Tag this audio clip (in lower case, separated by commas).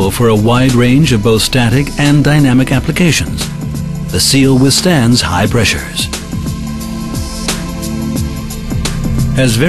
speech, music